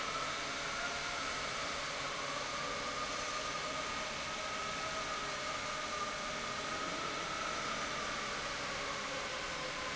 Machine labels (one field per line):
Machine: pump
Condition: normal